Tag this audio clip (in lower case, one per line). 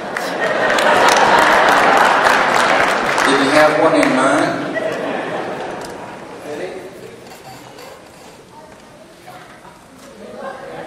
speech